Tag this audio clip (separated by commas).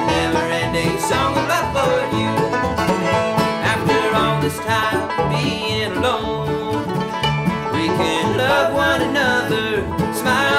Musical instrument, Banjo, Music